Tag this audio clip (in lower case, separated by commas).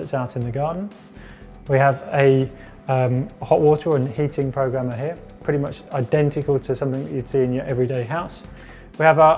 speech, music